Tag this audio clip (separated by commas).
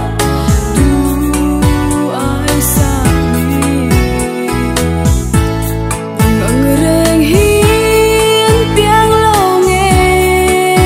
Music